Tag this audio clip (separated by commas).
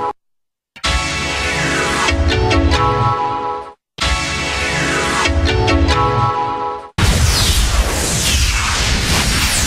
Music